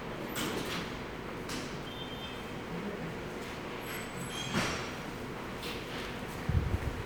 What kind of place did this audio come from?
subway station